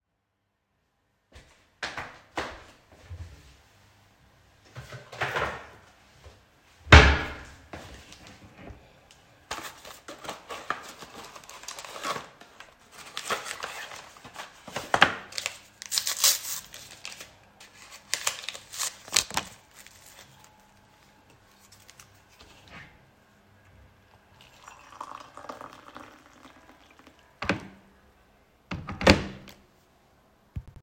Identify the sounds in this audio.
footsteps, wardrobe or drawer, running water